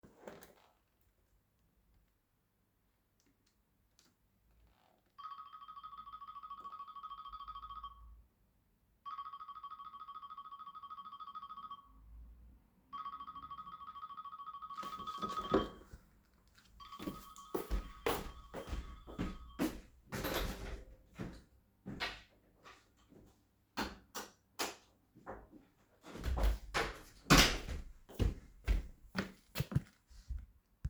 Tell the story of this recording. The recording device was placed near the entrance. A phone ringtone occurred while I opened and closed the door and switched the light on. Wind and faint sounds from outside the window are audible in the background.